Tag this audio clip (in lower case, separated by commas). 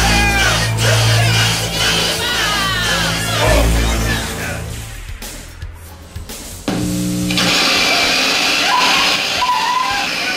speech, music